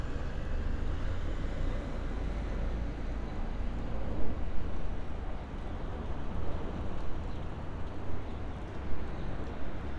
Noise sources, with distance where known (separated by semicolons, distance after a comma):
medium-sounding engine